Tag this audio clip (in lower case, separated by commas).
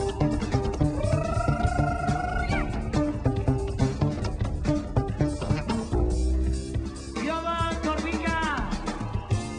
playing double bass